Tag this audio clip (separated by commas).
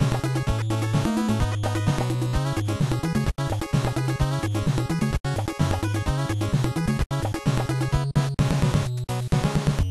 Video game music, Music